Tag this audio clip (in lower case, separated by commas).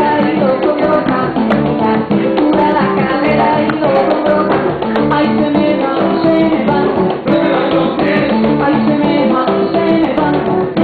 music, singing